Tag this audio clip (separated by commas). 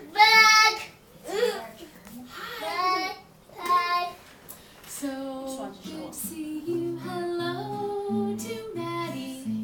Speech